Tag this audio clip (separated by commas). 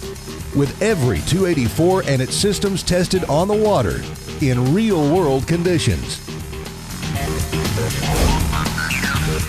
Speech, Music